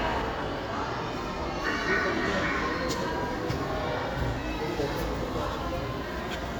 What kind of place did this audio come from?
crowded indoor space